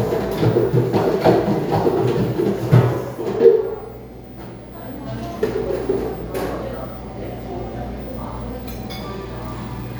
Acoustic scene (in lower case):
cafe